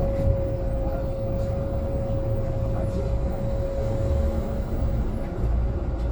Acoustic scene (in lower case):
bus